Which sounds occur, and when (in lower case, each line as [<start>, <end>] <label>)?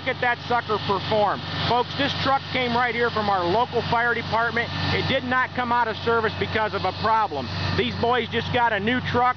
[0.00, 9.35] mechanisms
[0.05, 1.34] male speech
[1.66, 4.70] male speech
[5.02, 7.44] male speech
[7.74, 9.34] male speech